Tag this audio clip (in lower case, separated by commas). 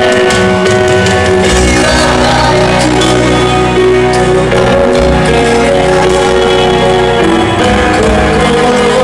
music